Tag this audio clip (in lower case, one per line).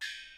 music
percussion
gong
musical instrument